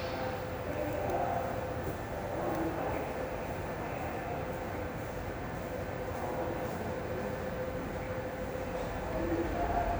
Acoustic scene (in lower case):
subway station